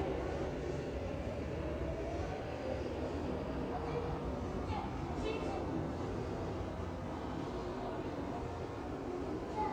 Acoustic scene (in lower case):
subway station